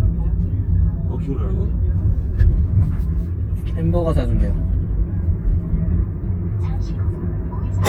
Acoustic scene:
car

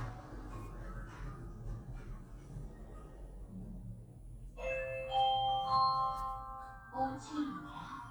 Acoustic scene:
elevator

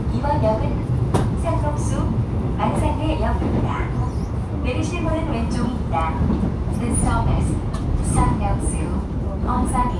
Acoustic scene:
subway train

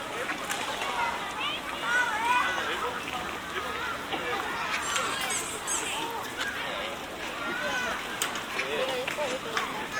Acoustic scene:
park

